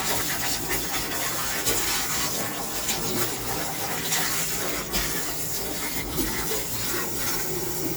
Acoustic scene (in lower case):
kitchen